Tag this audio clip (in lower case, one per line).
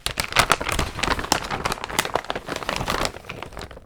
crinkling